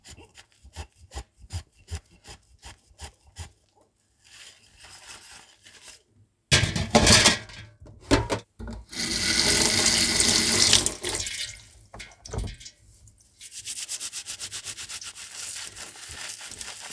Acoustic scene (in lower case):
kitchen